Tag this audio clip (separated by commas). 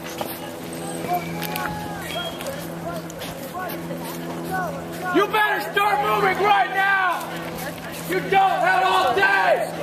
Speech